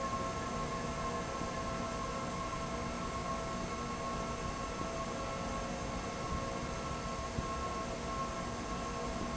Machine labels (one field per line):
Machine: fan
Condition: abnormal